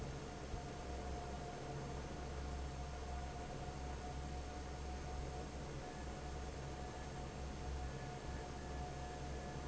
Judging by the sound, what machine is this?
fan